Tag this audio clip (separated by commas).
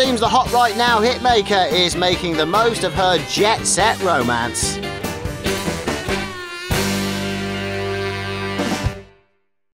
Speech, Music